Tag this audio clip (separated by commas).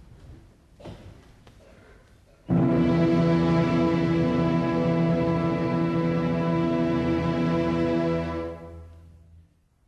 Music